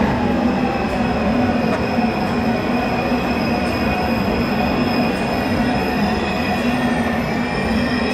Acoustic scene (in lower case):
subway station